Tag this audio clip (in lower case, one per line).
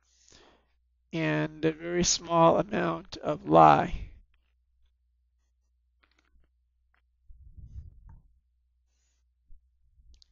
speech